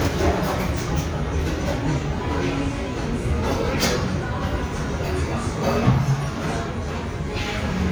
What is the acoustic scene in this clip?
restaurant